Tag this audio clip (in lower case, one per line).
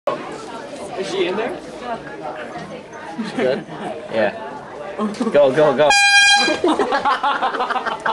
inside a public space
truck horn
speech